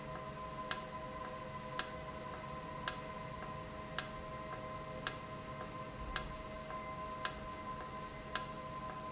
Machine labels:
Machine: valve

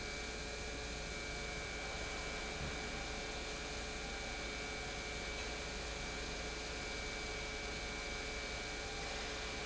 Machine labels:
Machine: pump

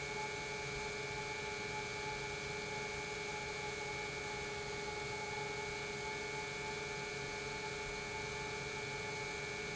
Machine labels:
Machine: pump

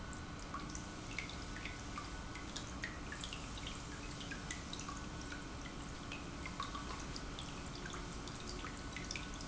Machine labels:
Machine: pump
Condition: normal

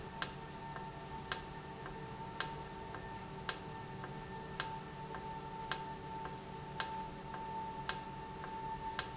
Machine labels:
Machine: valve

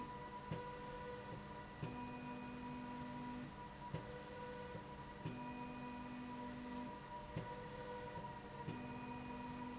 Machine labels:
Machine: slide rail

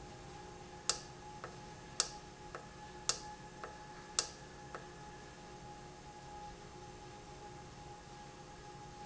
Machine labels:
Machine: valve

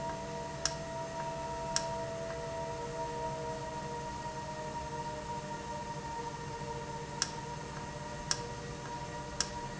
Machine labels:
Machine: valve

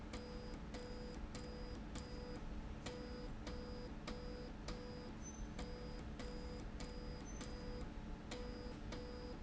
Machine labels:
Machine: slide rail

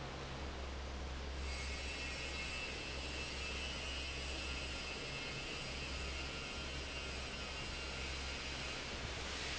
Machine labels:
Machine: fan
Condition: normal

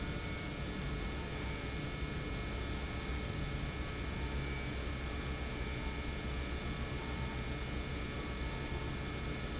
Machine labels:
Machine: pump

